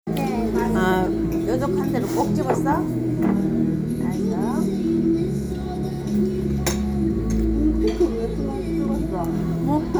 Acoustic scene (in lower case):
restaurant